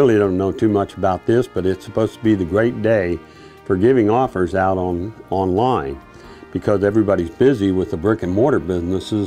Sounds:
music
speech

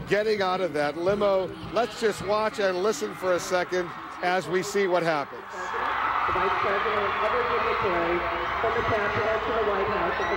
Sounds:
speech

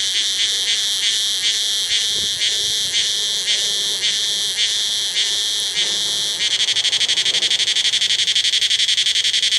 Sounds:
insect
wind rustling leaves
animal
rustling leaves

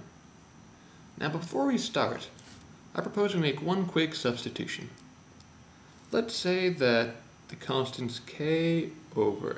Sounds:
speech

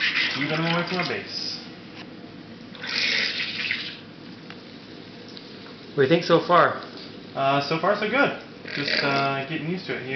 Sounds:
speech

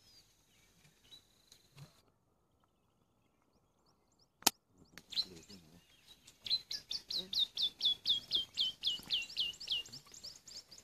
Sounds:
outside, rural or natural
tweeting
tweet

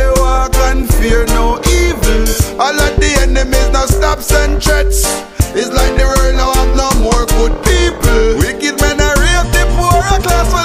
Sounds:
music

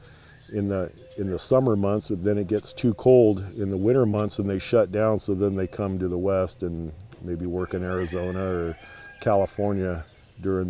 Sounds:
animal
speech

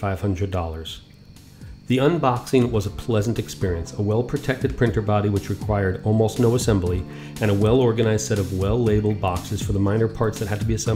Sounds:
speech
music

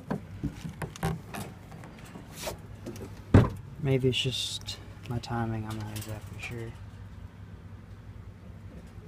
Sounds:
speech

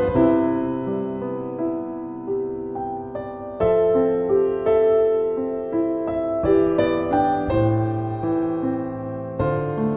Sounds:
music

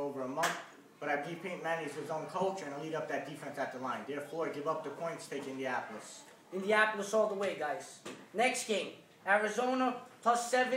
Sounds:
speech

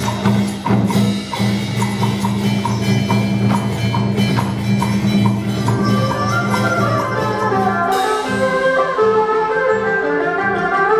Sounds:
music

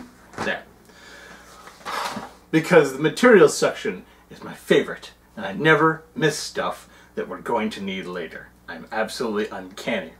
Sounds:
speech

